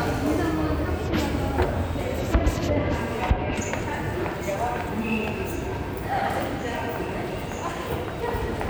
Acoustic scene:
subway station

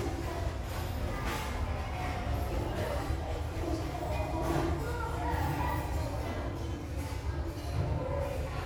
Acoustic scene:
restaurant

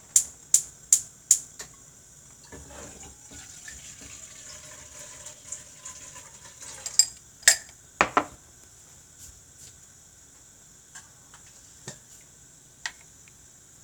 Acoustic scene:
kitchen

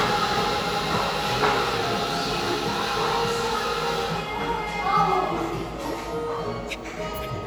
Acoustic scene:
cafe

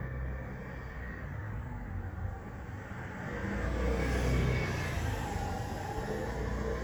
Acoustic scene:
residential area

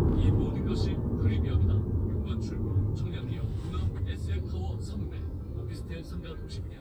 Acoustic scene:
car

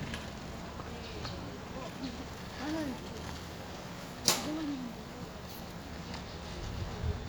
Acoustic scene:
residential area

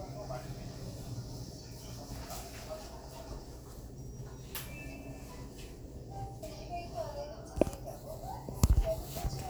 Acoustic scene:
elevator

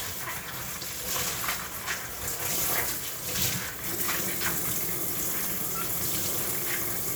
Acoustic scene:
kitchen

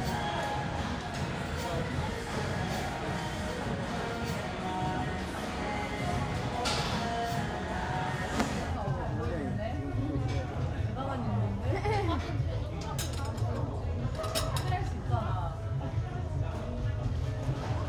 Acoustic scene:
restaurant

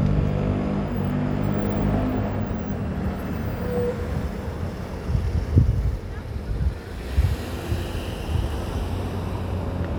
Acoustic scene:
street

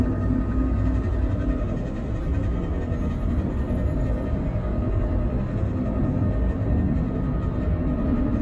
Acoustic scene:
bus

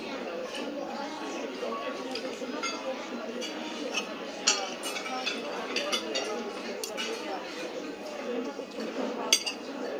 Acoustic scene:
restaurant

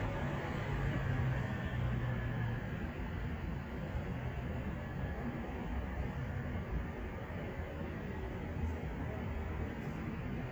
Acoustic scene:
street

